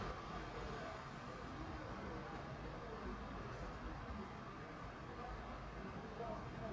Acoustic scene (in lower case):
residential area